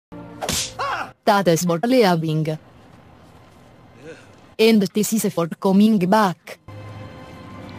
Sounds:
speech
music

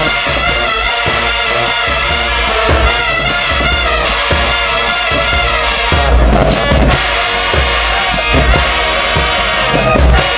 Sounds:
music

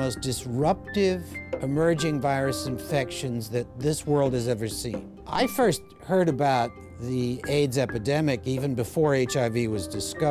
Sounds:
speech
music

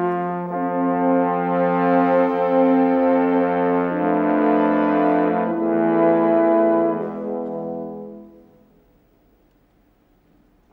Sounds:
french horn
trombone
brass instrument

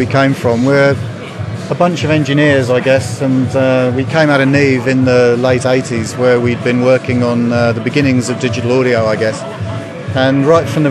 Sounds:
speech
music

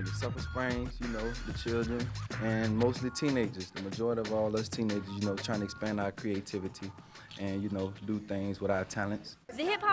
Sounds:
speech
music

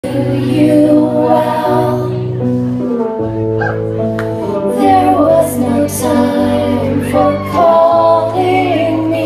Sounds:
female singing
music
singing

